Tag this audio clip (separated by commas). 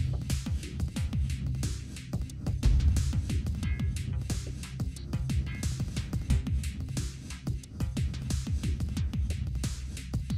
Music